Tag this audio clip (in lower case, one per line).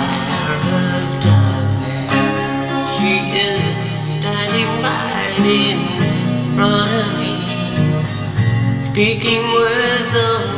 guitar
music
plucked string instrument
musical instrument
acoustic guitar